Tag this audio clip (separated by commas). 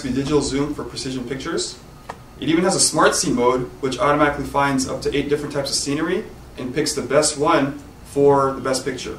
Speech